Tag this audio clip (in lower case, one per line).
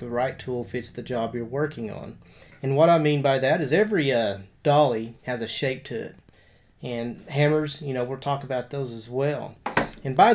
speech